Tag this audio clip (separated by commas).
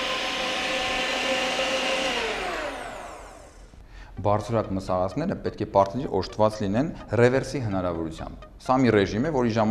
Blender